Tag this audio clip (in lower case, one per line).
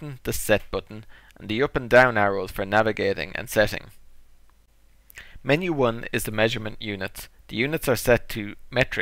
speech